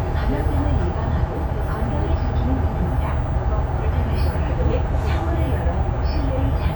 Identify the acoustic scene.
bus